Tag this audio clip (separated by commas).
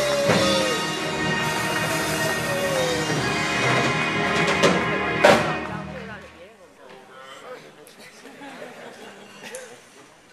woman speaking, Speech, man speaking, Music